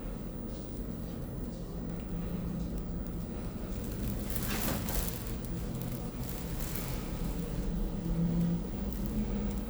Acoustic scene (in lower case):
elevator